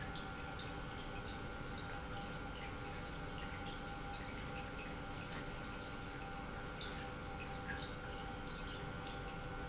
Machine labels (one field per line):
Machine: pump